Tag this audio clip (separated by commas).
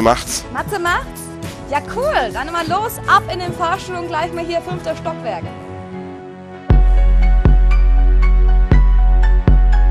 Music, Speech